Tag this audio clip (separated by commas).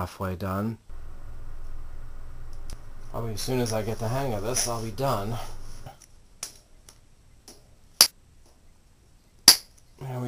Speech